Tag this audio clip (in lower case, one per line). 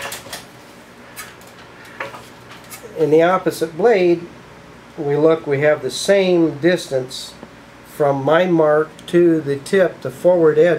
speech